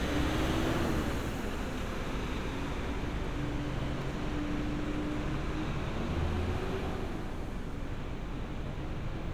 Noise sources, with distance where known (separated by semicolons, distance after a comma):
large-sounding engine, near